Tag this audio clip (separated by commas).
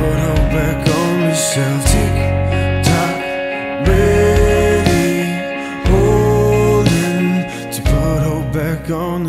Music